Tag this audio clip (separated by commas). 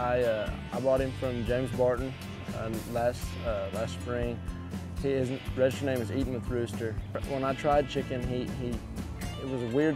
Music, Speech